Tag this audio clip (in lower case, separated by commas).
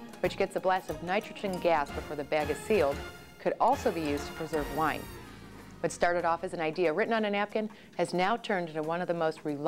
speech, music